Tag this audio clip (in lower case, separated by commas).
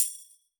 music, percussion, musical instrument, tambourine